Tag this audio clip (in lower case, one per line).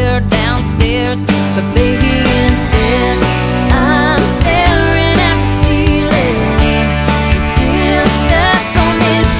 music
pop music